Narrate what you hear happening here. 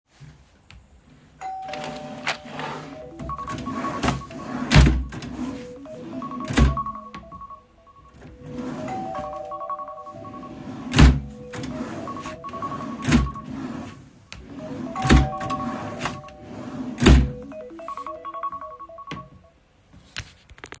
My phone started ringing on the desk while I was in the office. Shortly after, a bell notification went off as well. I got up, opened a cabinet drawer to grab something, and then closed it again.